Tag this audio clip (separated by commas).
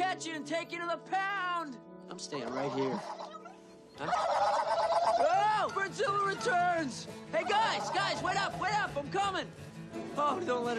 Turkey, Fowl, Gobble